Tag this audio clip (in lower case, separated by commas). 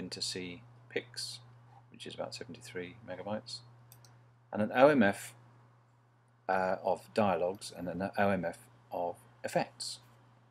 speech